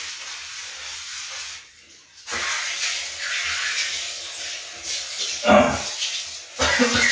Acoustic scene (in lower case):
restroom